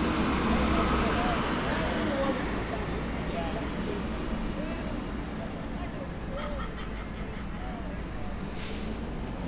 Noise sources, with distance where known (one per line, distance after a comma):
person or small group talking